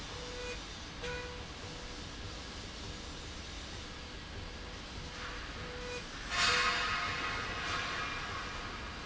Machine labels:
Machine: slide rail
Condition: normal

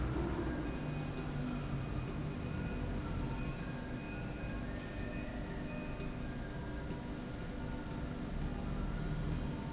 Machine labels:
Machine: slide rail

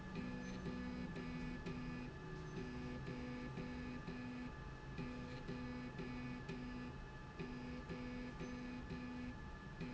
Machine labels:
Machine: slide rail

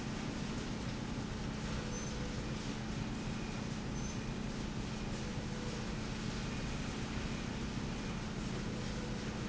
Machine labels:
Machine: slide rail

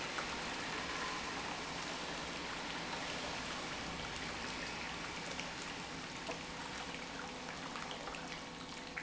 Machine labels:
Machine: pump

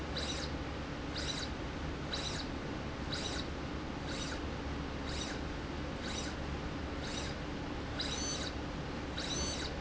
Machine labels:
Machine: slide rail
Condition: abnormal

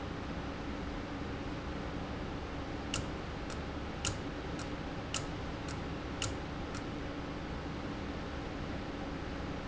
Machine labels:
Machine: valve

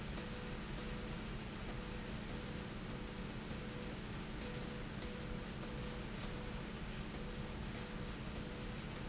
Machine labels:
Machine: slide rail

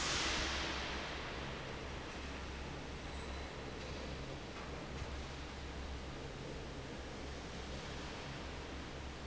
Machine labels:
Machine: fan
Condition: normal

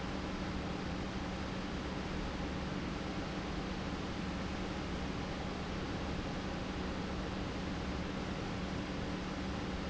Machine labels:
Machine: pump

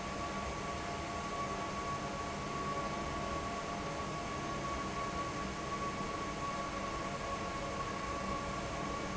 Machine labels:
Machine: fan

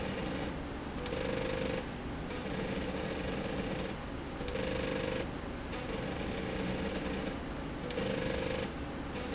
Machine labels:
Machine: slide rail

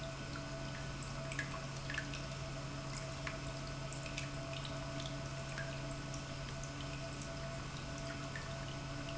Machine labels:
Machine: pump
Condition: normal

